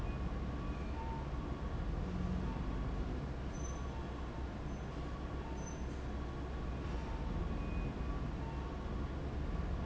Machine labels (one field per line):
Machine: fan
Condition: abnormal